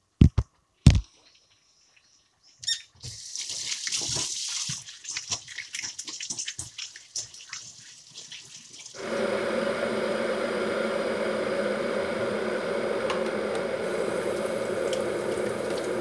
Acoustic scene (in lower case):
kitchen